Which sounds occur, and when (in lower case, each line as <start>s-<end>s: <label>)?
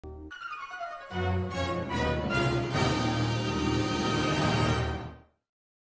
0.0s-5.5s: sound effect